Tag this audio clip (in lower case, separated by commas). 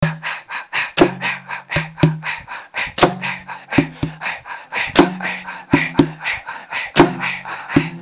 human voice